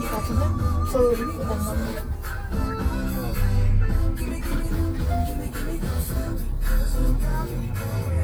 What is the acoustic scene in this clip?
car